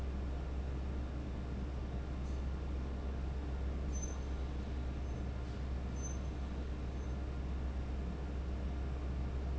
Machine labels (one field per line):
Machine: fan